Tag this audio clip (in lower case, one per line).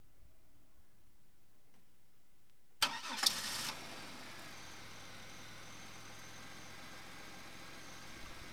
engine starting
car
motor vehicle (road)
vehicle
idling
engine